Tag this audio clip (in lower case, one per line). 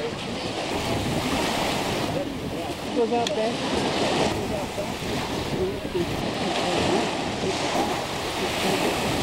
water vehicle
rowboat
speech